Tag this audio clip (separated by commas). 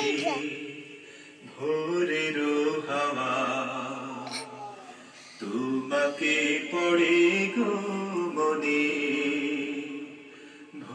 Speech